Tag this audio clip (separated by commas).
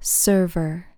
Speech, Human voice, Female speech